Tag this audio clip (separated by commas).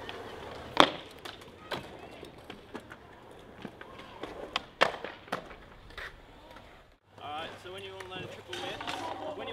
Speech